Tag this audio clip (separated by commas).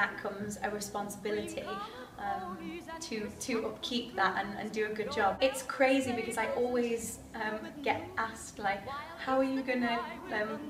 Speech, Music